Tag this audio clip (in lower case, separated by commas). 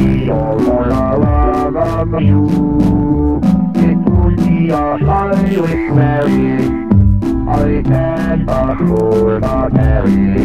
music